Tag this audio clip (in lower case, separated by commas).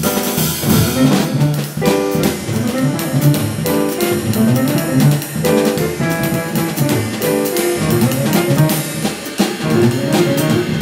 vibraphone, musical instrument, music